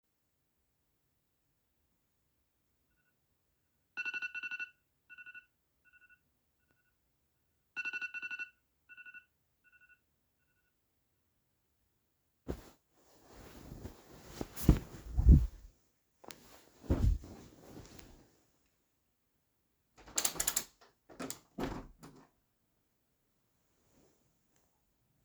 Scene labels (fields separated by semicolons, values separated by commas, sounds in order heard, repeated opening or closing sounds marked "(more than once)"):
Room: bedroom; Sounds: phone ringing, window